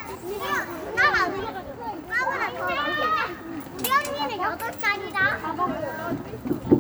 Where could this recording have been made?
in a residential area